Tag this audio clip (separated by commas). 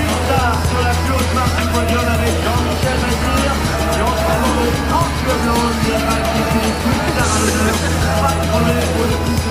Speech, Music